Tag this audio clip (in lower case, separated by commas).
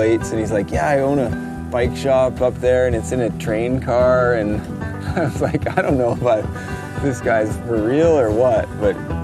music, speech